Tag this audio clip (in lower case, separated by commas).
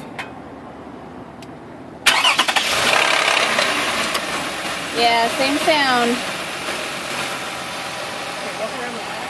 speech